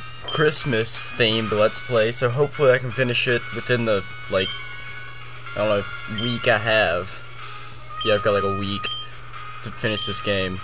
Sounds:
speech
music

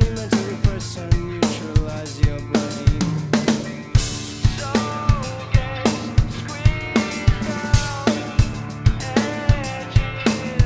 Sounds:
playing snare drum

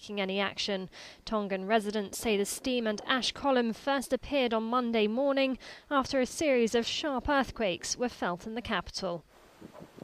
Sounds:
speech

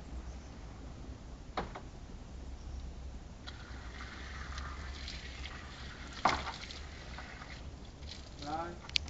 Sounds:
speech

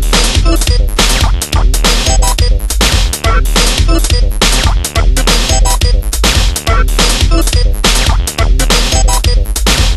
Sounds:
music
techno
electronic music

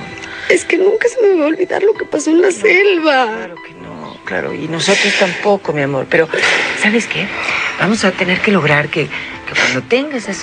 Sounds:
music
speech

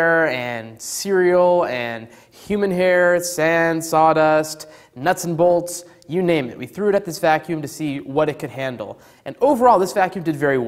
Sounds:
speech

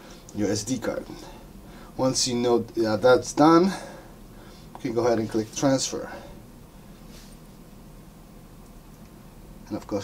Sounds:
inside a small room
speech

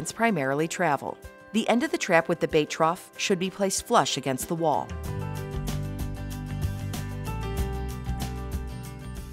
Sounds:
music
speech

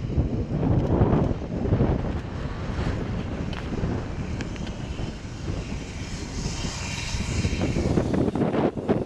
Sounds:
vehicle

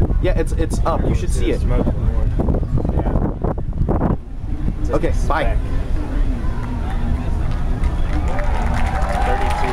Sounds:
wind

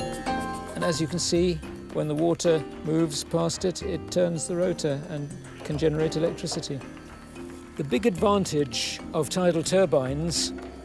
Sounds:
music
speech

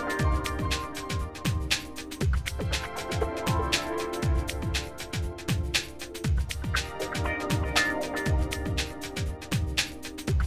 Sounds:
music

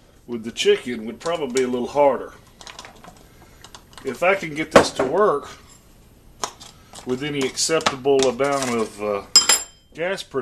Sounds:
speech

